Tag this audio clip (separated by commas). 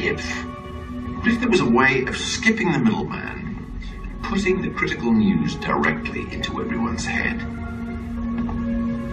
man speaking, Music, Speech